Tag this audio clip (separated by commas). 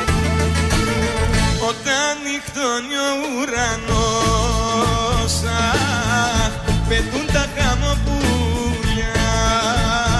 Middle Eastern music, Music, Dance music